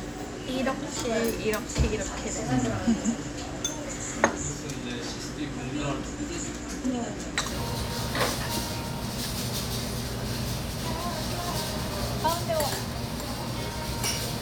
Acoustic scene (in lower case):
restaurant